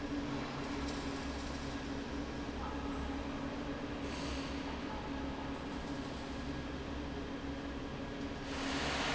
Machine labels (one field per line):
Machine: fan